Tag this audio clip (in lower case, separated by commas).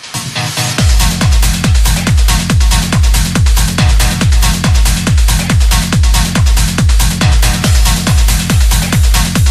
trance music, music